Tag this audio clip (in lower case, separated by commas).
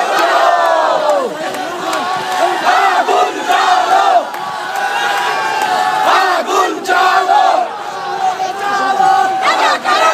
outside, urban or man-made, speech